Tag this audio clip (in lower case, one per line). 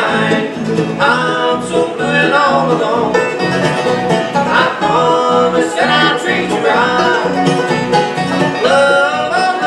music